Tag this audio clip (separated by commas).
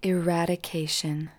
woman speaking, Human voice, Speech